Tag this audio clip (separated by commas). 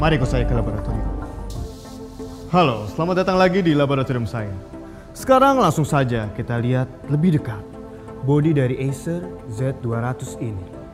Music, Speech